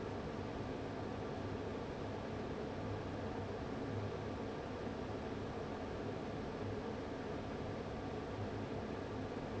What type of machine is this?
fan